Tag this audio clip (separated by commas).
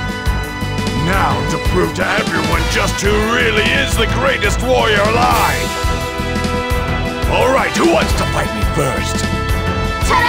Music, Speech